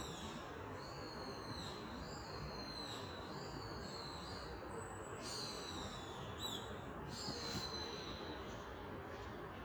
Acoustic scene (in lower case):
park